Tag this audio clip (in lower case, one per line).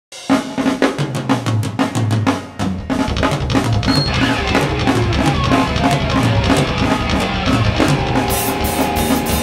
drum roll
drum
bass drum
rimshot
percussion
snare drum
drum kit